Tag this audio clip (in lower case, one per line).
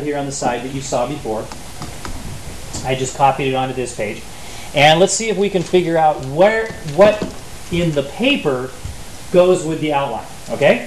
speech